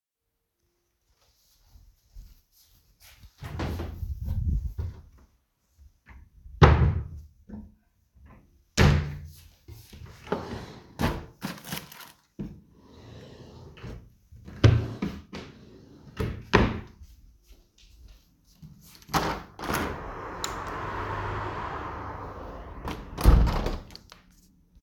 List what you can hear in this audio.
footsteps, wardrobe or drawer, window